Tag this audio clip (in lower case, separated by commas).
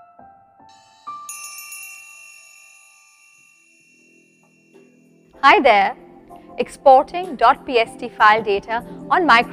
music, speech